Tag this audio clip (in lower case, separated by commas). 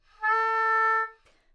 musical instrument, music, wind instrument